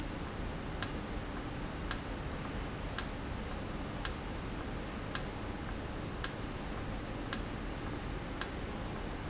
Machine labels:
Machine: valve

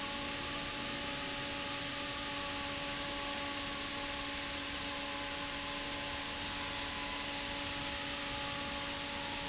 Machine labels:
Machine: fan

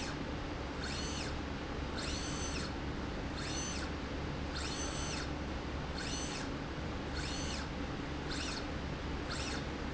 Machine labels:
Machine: slide rail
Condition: normal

